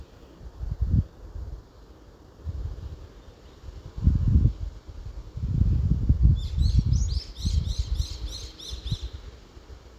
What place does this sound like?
park